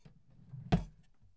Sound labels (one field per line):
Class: drawer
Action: closing